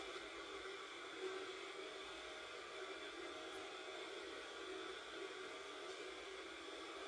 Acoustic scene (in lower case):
subway train